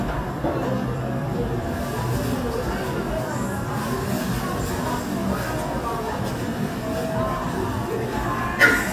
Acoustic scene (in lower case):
cafe